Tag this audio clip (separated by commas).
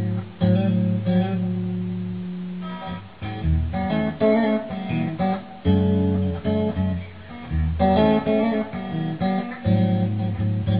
Plucked string instrument, Music, Electric guitar, Guitar, Strum, Musical instrument